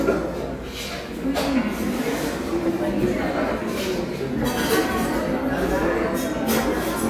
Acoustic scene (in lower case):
cafe